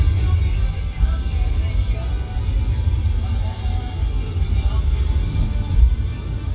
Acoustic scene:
car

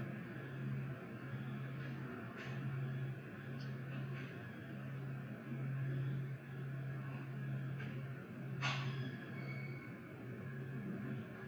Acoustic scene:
elevator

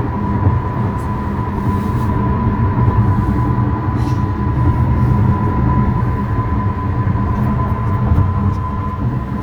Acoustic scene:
car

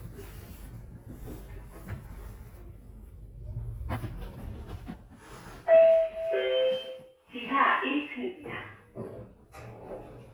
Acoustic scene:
elevator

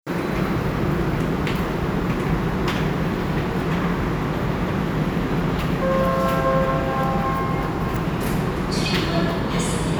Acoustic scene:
subway station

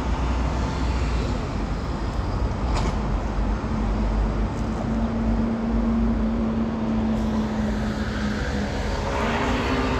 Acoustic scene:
residential area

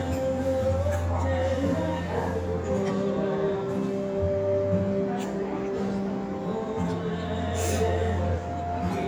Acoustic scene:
restaurant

